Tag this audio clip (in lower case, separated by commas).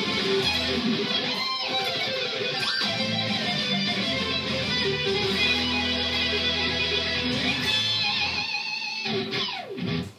musical instrument, inside a small room, plucked string instrument, guitar, music